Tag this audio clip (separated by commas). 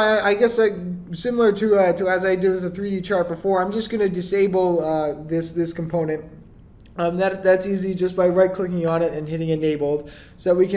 Speech